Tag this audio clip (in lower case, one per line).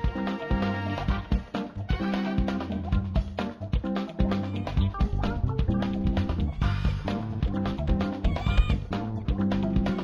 music